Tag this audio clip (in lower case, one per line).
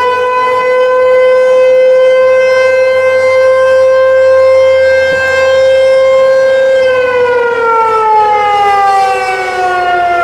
siren